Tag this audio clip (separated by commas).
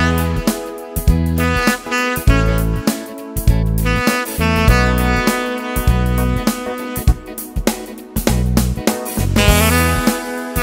Music